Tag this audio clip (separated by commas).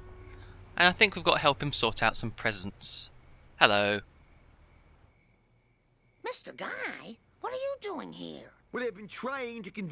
Speech